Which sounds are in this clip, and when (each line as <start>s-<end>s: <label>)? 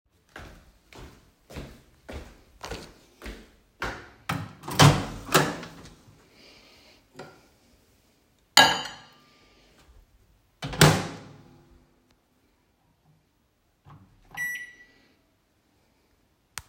0.2s-4.7s: footsteps
4.2s-6.1s: microwave
7.1s-7.5s: cutlery and dishes
8.5s-9.9s: cutlery and dishes
10.5s-11.3s: microwave
13.8s-15.5s: microwave